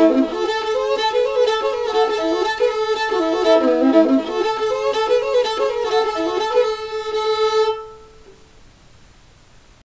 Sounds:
music

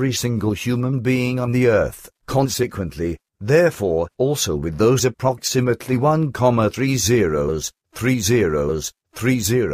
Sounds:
speech

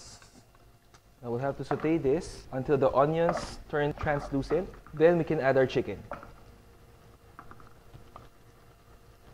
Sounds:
speech

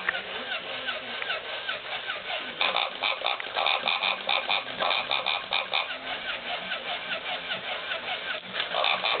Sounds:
pig oinking
oink

